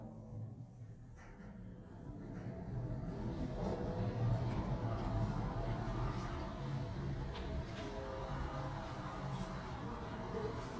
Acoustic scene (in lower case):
elevator